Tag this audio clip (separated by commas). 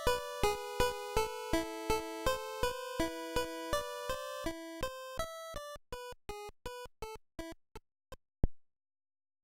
Music